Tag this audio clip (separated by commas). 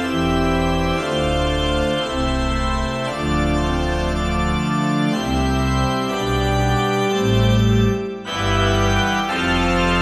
playing electronic organ